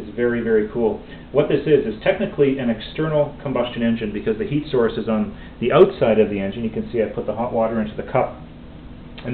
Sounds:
Speech

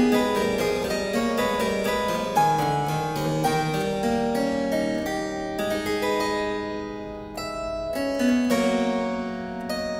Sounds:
playing harpsichord

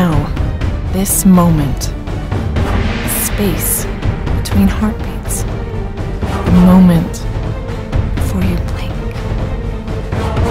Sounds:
Music, Speech

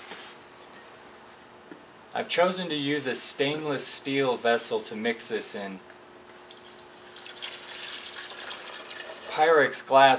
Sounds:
Speech

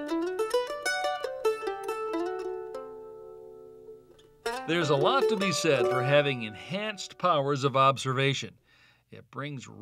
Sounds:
Speech, Mandolin, Music

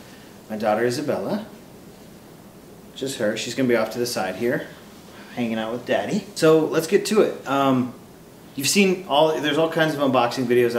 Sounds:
Speech

